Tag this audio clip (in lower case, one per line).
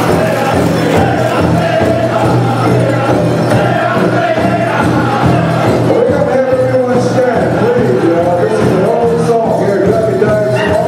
music